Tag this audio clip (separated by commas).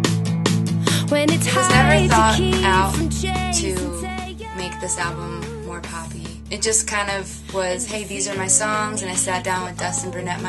inside a small room, Music, Speech